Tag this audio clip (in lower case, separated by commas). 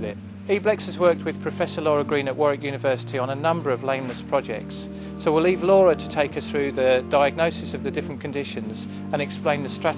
speech, music